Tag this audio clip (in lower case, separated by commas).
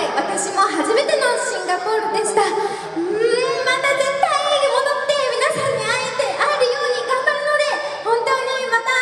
speech, monologue, woman speaking